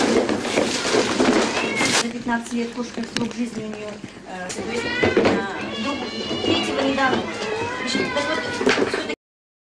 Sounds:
Speech, Animal, Caterwaul, pets, Meow, Cat

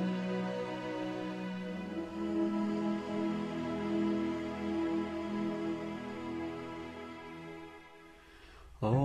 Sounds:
Mantra, Music

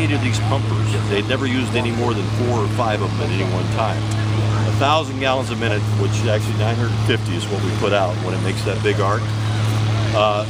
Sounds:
Speech, Vehicle

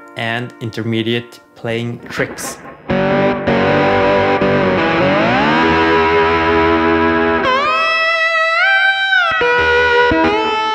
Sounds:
slide guitar

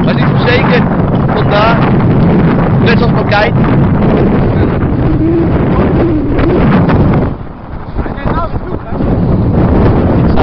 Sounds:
Speech, Waterfall

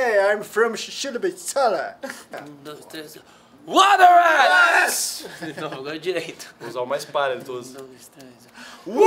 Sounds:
Speech

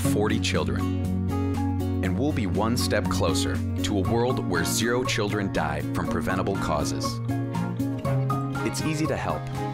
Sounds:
Music, Speech

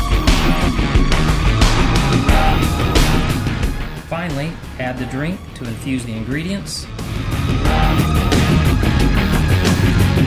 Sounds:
Speech, Music

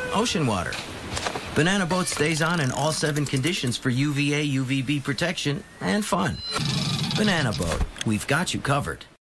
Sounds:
Speech

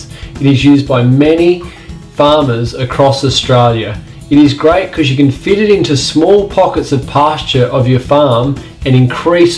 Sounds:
Speech, Music

